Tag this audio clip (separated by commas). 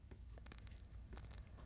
Fire